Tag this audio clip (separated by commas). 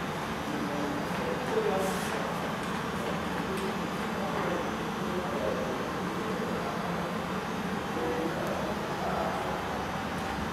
Speech